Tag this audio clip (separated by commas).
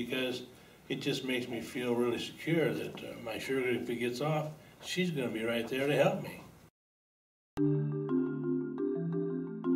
Speech, Music